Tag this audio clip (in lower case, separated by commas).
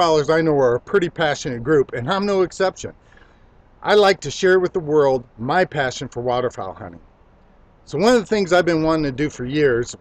speech